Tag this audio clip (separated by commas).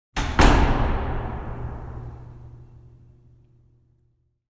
Slam, Door, home sounds